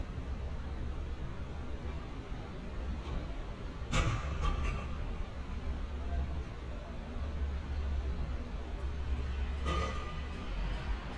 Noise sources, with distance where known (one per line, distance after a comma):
engine of unclear size
non-machinery impact